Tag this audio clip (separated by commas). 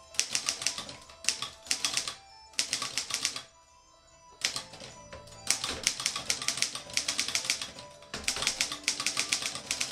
Typewriter, Music